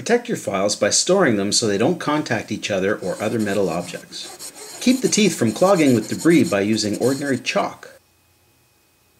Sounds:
speech, filing (rasp)

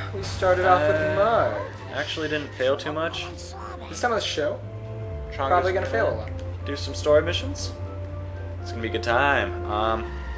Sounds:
speech, music

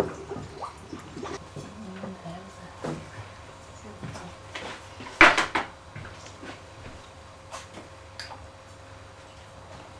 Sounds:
speech

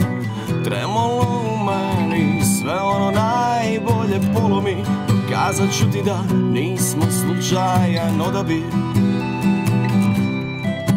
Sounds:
music

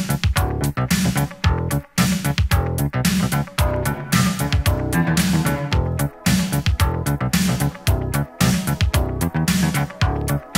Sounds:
disco, music

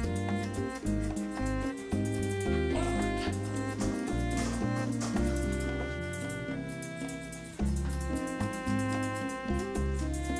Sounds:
music

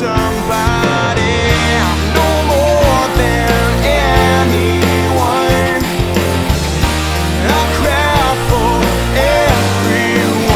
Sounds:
music, funk

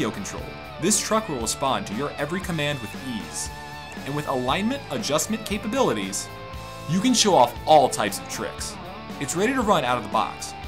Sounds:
speech, music

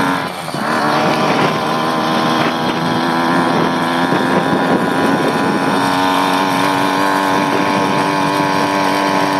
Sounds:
bicycle, vehicle

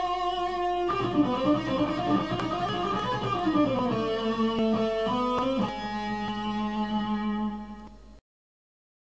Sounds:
music, plucked string instrument, musical instrument, guitar

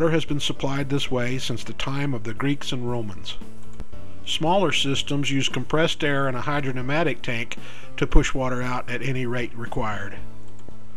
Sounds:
music, speech

